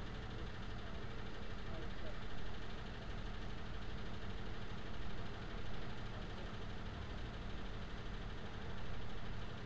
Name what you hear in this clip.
medium-sounding engine, person or small group talking